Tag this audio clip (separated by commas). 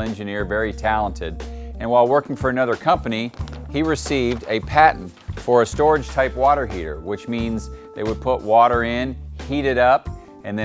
Speech, Music